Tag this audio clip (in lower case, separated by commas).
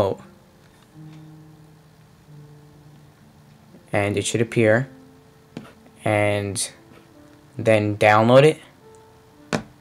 music, speech